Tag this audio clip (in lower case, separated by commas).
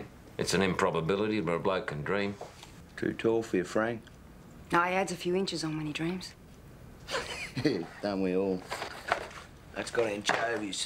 speech